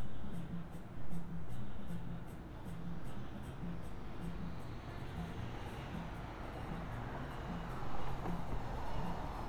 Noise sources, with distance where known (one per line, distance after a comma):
music from an unclear source, far